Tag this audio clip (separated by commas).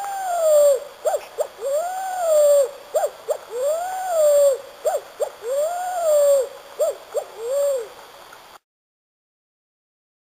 Animal